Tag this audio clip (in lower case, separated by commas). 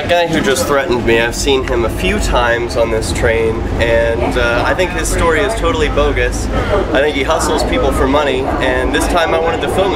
vehicle, speech